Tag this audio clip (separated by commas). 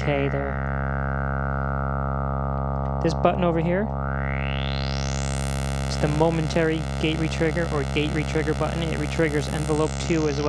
Synthesizer, Speech